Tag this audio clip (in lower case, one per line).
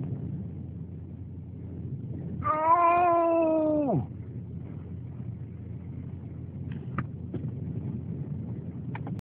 vehicle